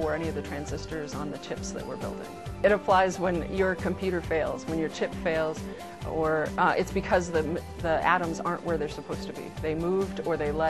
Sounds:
Music, Speech

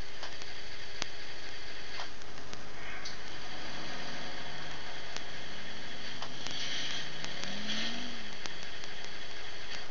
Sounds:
Vehicle

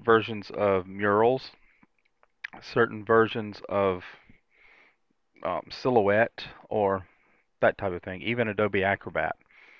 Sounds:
Speech

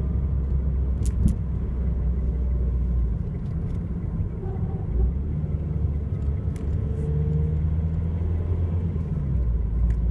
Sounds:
Vehicle

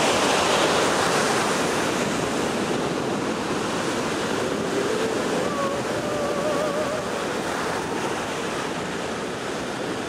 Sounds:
Ocean, ocean burbling, surf

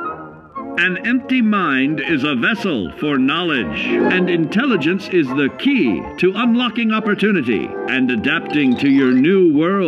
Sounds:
Music, Speech

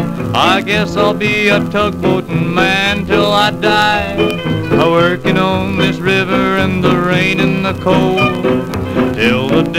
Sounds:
Music, Blues

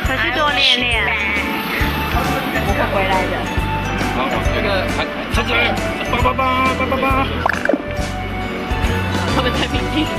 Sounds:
Music, Speech

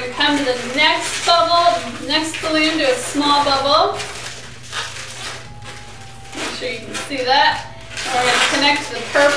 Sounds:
Music, Speech

